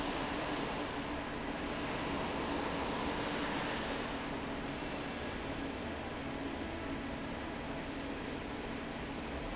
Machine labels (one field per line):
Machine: fan